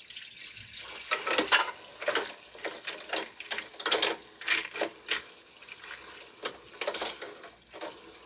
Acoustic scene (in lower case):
kitchen